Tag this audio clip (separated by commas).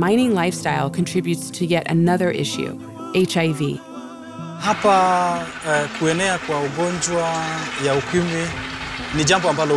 outside, rural or natural, Music, Speech